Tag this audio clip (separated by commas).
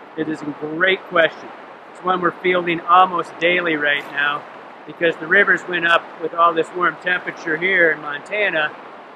Speech